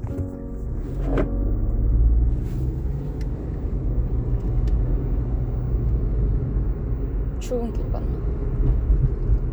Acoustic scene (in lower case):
car